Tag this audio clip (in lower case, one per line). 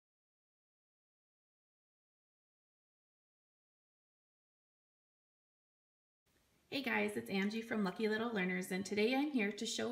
silence
speech